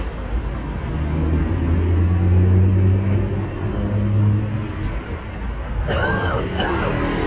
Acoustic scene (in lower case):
street